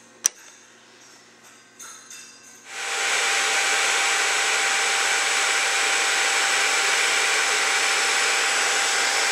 Tools and drill being used